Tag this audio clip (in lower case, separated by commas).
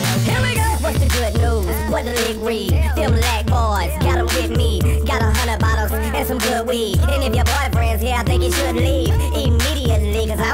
music